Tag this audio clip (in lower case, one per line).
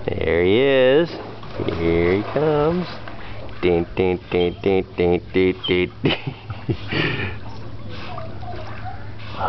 speech
animal
splatter